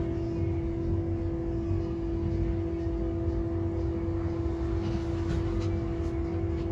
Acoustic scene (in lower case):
bus